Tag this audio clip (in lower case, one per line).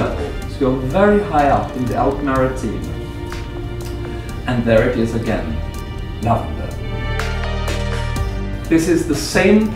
speech
music